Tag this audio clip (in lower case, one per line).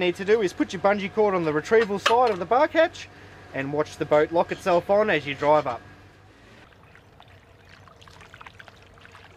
water vehicle
vehicle
speech